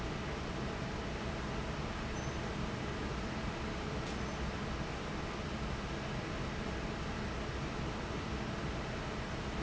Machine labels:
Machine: fan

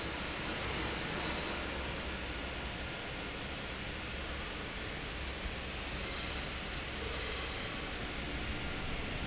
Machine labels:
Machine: fan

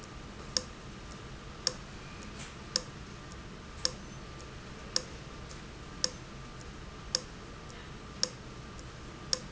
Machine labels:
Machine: valve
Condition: abnormal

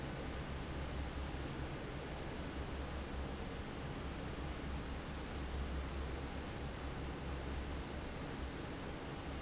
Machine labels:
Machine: fan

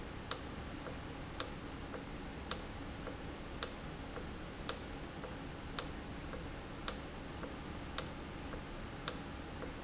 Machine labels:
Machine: valve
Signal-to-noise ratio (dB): 0 dB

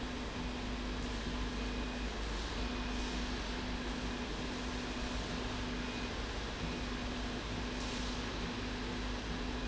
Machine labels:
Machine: slide rail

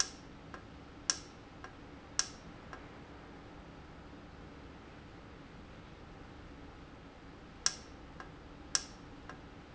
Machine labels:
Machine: valve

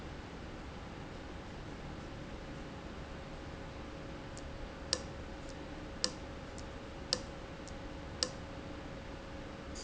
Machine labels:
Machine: valve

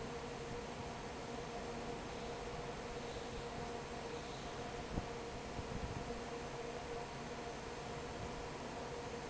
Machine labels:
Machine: fan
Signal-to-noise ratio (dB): 6 dB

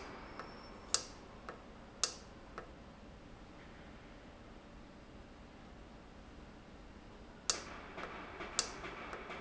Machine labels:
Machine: valve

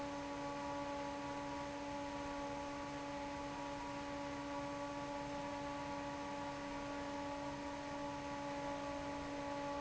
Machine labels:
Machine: fan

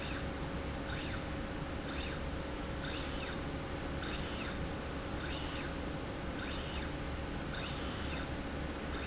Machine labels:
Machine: slide rail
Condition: normal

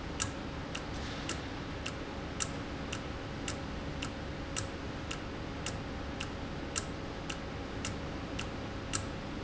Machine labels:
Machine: valve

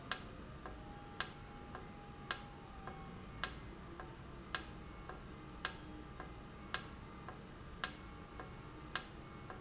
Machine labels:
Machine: valve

